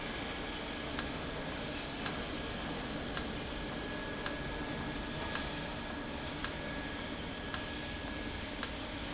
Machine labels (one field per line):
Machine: valve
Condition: normal